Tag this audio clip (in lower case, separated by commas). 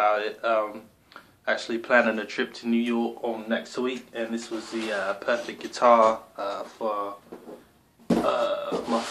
speech